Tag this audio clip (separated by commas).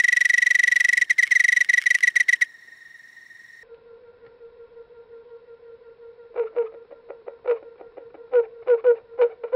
Cricket, Insect